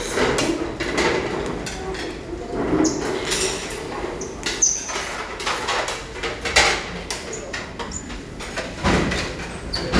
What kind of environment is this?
restaurant